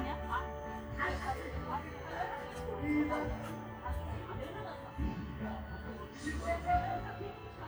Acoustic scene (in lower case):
park